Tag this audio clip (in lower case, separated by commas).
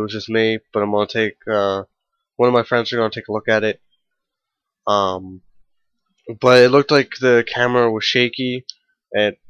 speech